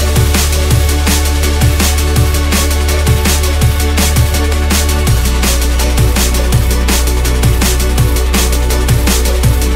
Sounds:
bass drum, drum kit, percussion, drum, rimshot

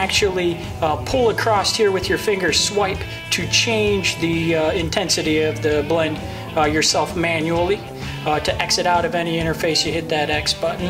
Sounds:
speech, music

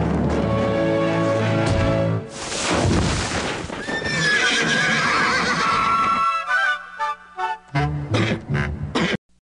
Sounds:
neigh, horse neighing, animal, music, clip-clop, horse

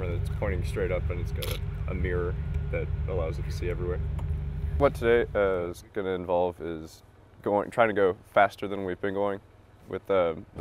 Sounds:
speech

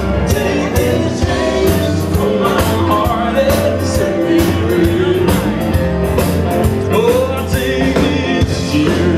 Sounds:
music

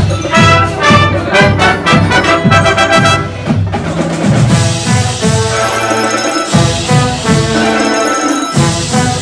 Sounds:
brass instrument, music

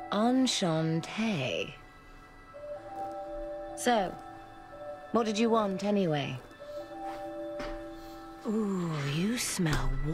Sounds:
music, speech

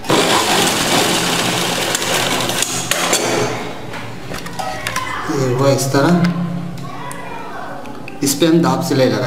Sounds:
sewing machine, speech, inside a small room

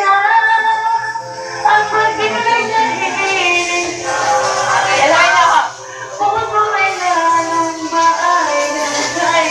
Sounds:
music, speech, female singing

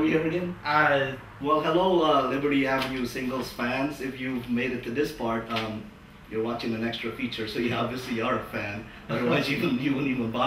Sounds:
speech

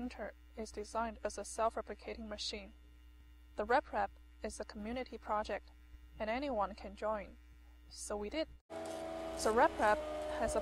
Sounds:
speech

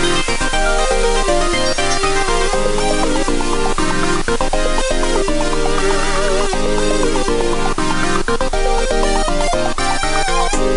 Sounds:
music

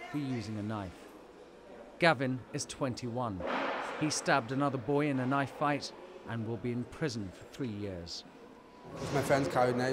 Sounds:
speech

